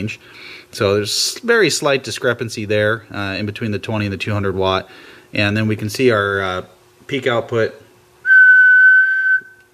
A man speaking followed by whistling and then brief speech